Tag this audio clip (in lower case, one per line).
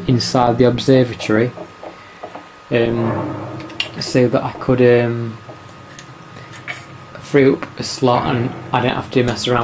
speech